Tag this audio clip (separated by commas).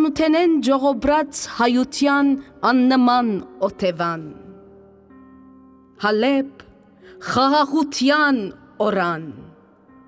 Speech, Music